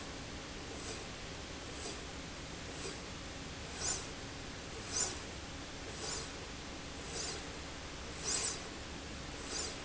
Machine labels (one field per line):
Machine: slide rail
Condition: normal